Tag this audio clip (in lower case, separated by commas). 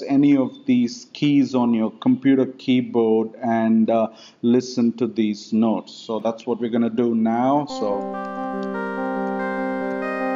music, speech